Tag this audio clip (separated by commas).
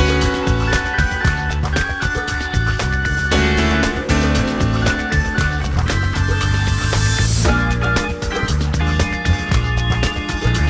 Rhythm and blues, Music